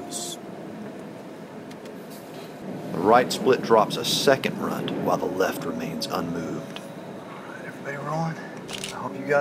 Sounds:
tornado roaring

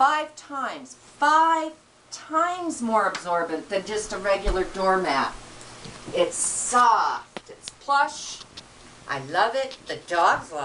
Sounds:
Speech

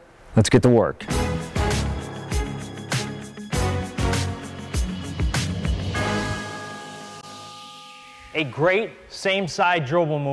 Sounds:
Music, Speech

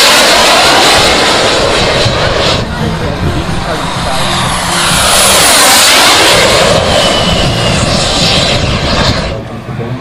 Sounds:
airplane flyby

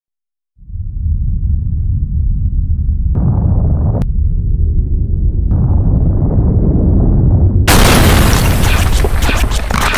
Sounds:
Boom, Music

